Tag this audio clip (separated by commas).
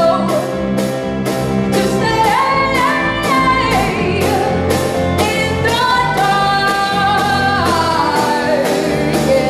Soundtrack music, Music